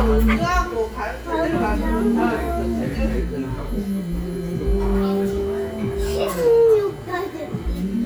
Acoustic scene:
restaurant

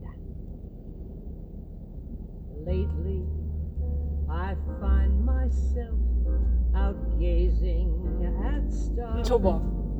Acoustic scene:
car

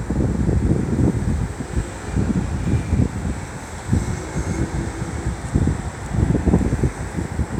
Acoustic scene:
street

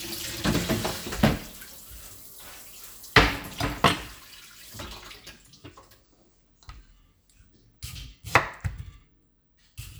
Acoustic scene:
kitchen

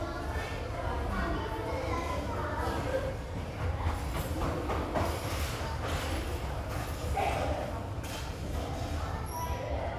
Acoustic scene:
restaurant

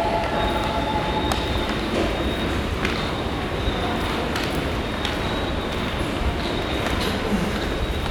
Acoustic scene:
subway station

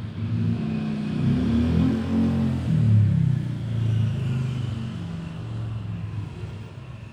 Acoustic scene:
residential area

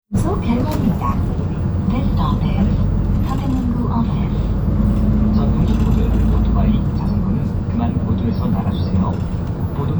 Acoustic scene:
bus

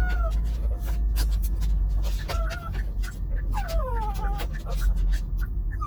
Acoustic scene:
car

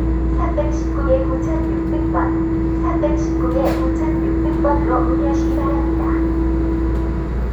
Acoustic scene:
subway train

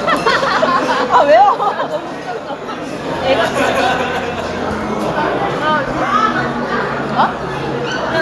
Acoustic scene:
restaurant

